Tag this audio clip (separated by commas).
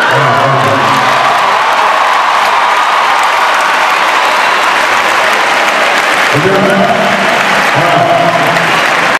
Speech